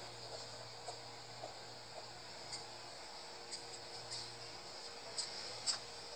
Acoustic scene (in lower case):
street